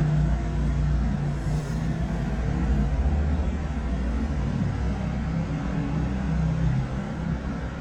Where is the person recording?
in a residential area